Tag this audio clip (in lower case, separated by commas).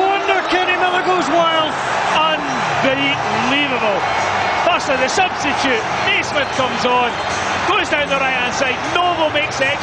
speech